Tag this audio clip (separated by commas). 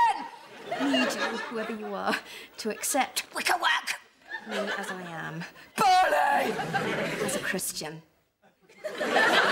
Speech